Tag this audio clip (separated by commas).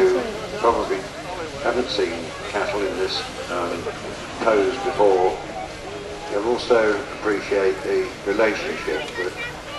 Speech